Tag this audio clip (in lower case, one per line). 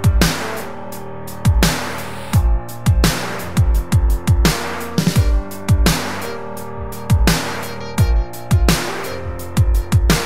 music
independent music